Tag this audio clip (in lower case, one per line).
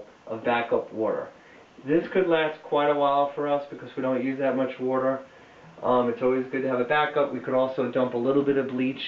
speech